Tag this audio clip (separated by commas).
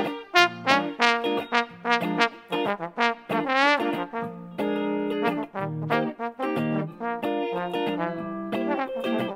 playing trombone